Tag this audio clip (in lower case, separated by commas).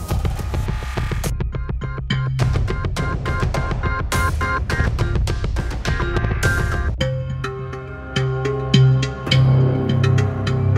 music